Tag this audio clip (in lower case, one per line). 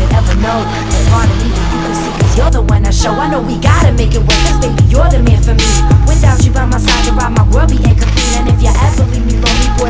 music
outside, urban or man-made